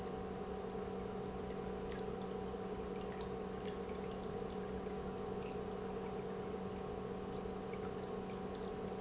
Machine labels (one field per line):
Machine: pump